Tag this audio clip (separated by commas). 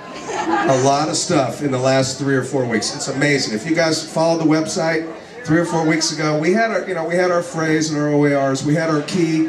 Speech